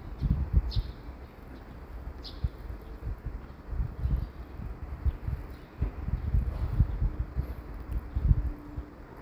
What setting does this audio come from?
residential area